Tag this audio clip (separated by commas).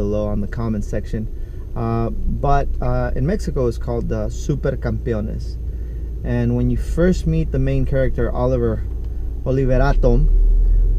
Vehicle, Speech